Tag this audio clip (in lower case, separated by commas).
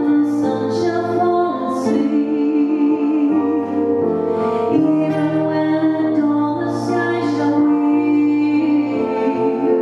vocal music, music, singing